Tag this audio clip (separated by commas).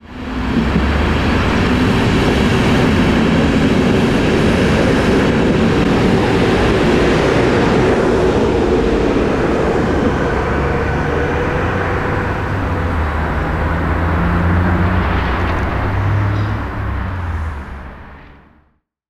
Rail transport, Train, Vehicle